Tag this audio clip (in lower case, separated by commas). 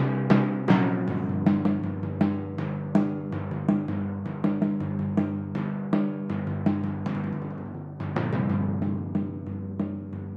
percussion, drum kit, timpani, music, musical instrument